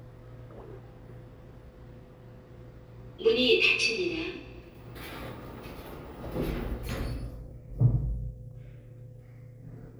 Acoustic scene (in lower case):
elevator